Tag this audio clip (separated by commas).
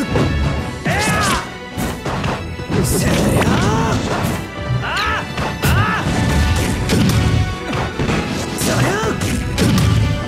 Speech, Music